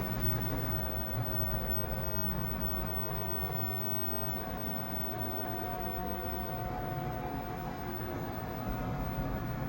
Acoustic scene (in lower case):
elevator